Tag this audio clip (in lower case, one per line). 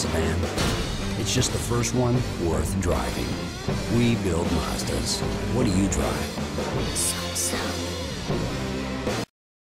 speech
music